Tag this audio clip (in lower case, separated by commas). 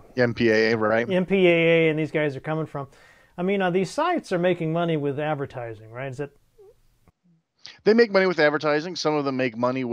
speech